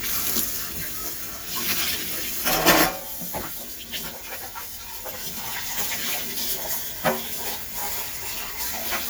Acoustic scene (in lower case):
kitchen